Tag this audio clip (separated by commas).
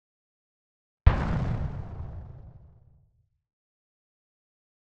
Explosion